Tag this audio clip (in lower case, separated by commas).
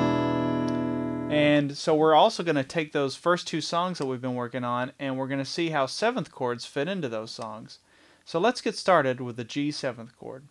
plucked string instrument, guitar, speech, musical instrument, music